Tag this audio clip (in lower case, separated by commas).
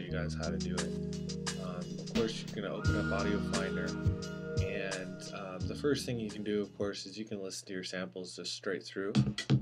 music, speech